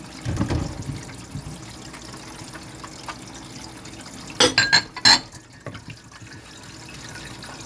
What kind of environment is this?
kitchen